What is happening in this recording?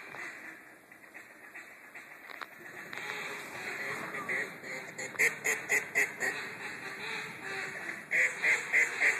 Duck calls are being blown, and ducks are quacking